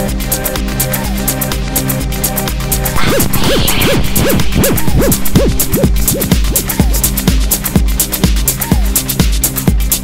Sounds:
techno, music, electronic music

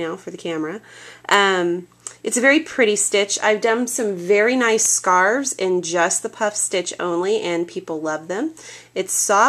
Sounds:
speech

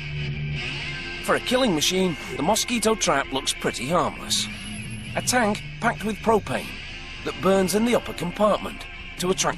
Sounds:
music, speech

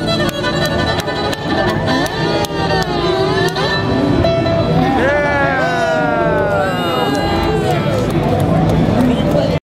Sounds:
music, speech, musical instrument, fiddle

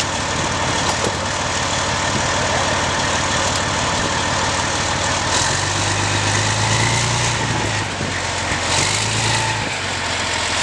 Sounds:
vehicle, motor vehicle (road)

